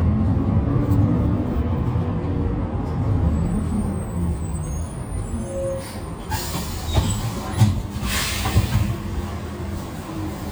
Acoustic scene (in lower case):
bus